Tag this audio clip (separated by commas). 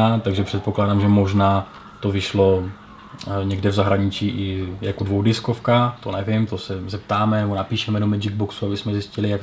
Speech